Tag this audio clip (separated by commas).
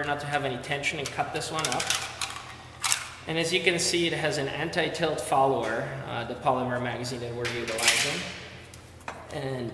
Speech